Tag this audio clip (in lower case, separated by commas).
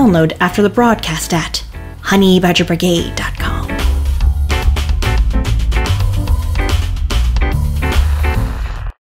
speech, music